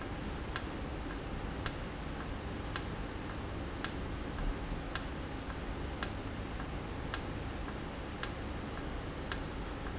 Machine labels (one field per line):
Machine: valve